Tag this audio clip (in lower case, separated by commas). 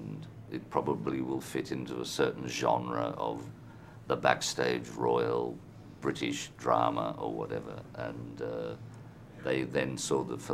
man speaking, narration, speech